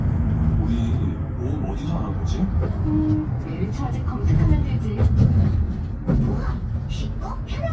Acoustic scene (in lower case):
bus